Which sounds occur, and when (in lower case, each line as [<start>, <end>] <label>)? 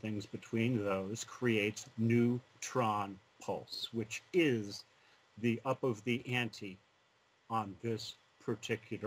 [0.00, 1.78] male speech
[0.00, 9.05] background noise
[1.94, 2.38] male speech
[2.58, 3.18] male speech
[3.38, 4.85] male speech
[4.89, 5.34] breathing
[5.34, 6.82] male speech
[7.49, 8.20] male speech
[8.40, 9.05] male speech